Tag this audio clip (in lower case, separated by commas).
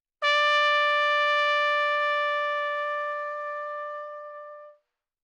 brass instrument, trumpet, music, musical instrument